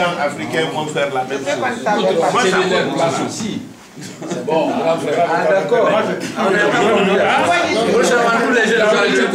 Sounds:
Speech

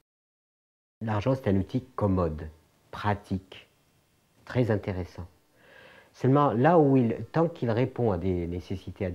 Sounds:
Speech

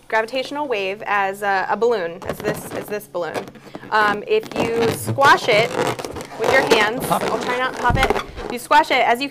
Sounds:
Speech

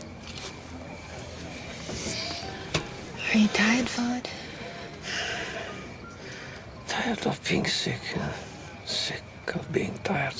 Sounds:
Speech, outside, urban or man-made, Music

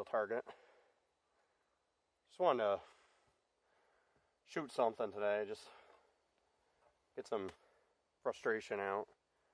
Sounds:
cap gun shooting

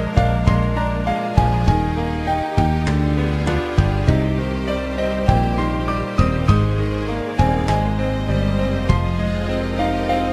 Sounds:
Music

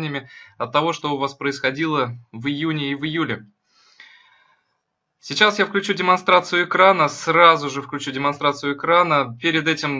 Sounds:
Speech

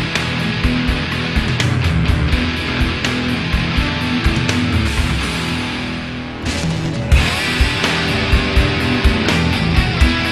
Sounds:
Music

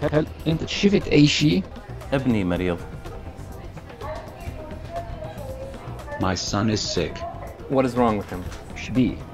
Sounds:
Male speech, Music, Conversation, Speech

